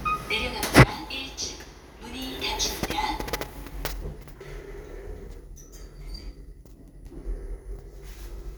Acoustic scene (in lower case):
elevator